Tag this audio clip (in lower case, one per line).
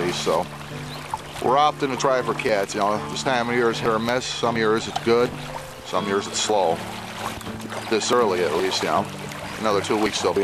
speech
music